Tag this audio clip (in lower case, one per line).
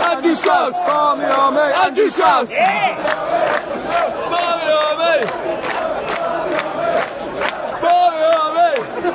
speech